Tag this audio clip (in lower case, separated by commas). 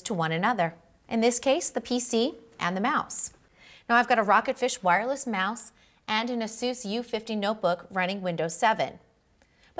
speech